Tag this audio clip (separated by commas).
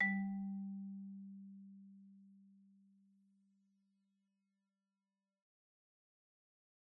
Musical instrument, Marimba, Music, Mallet percussion, Percussion